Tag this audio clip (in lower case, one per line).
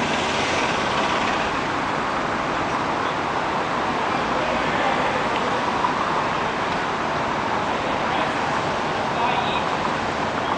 speech
vehicle